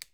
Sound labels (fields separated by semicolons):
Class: switch; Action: being turned on; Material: plastic